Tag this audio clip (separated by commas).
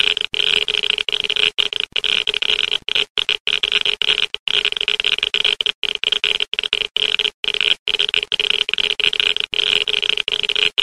Sound effect